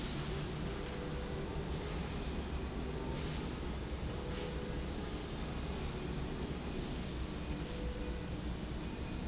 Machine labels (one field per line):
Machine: slide rail